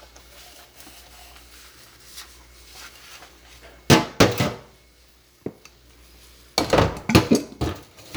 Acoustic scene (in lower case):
kitchen